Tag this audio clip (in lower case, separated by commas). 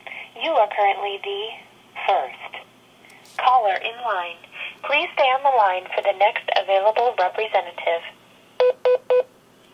speech, dtmf, inside a small room